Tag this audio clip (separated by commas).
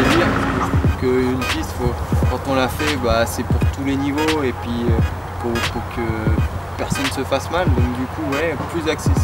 Music, Speech